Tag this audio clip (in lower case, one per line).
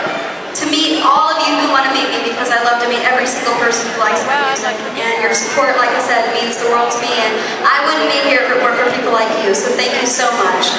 speech